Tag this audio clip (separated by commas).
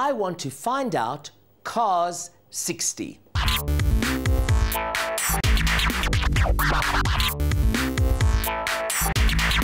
Scratching (performance technique)